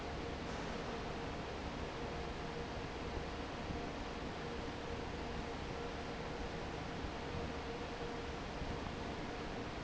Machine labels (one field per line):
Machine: fan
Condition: normal